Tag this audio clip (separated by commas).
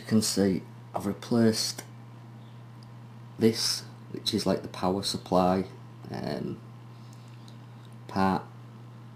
Speech